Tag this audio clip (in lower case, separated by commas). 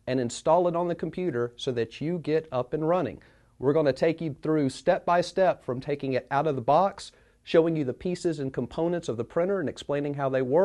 speech